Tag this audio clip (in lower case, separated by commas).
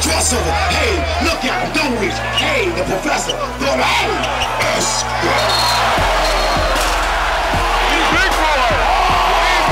music, speech